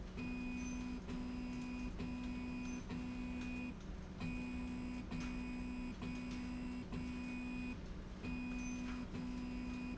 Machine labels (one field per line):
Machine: slide rail